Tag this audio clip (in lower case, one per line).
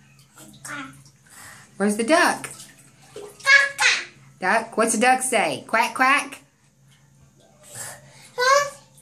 speech